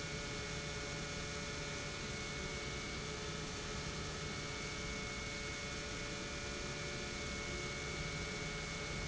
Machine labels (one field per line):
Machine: pump